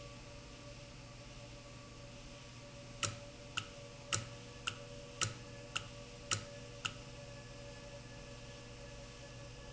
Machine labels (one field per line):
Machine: valve